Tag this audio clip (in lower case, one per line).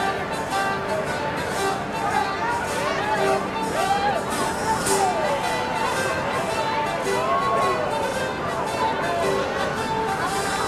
music